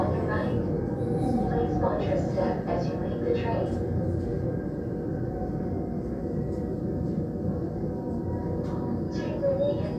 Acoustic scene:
subway train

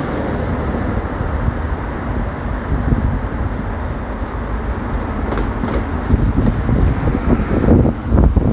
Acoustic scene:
street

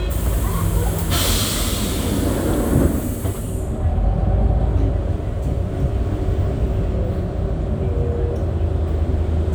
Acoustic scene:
bus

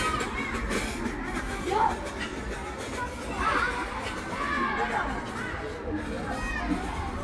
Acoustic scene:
park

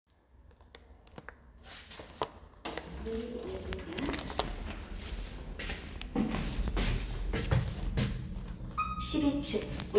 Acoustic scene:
elevator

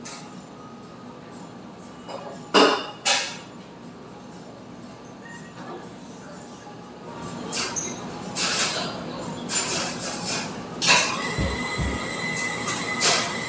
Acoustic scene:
cafe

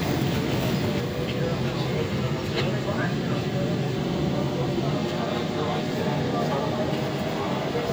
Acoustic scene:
subway train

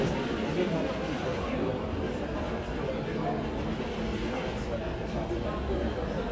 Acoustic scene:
crowded indoor space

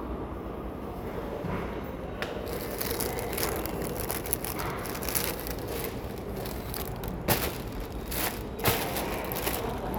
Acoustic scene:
subway station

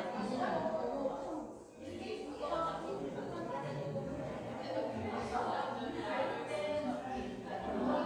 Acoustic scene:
cafe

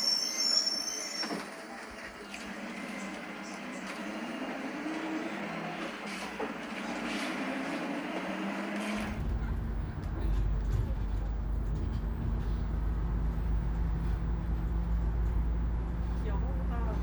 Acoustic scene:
bus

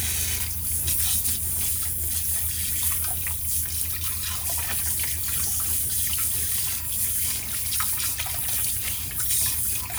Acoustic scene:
kitchen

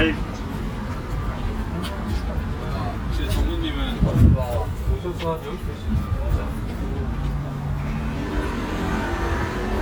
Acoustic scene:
residential area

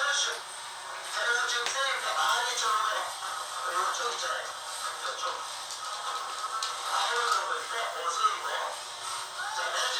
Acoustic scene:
crowded indoor space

